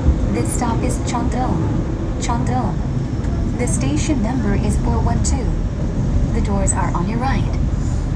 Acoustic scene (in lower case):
subway train